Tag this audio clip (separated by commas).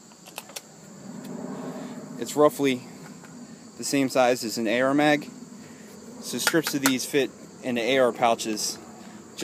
Speech